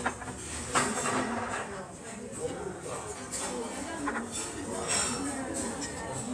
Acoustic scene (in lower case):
restaurant